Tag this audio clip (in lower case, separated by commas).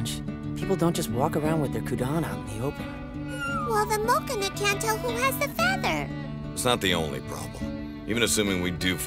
music, speech, outside, urban or man-made